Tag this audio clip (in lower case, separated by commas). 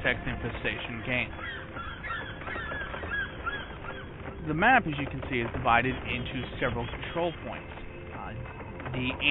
animal, speech, music